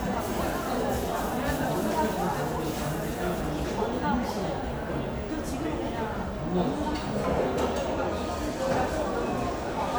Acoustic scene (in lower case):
crowded indoor space